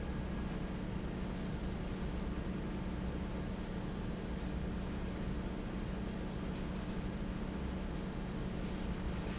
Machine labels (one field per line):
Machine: fan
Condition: normal